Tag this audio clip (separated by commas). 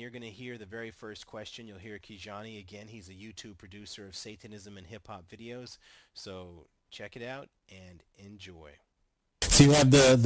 Speech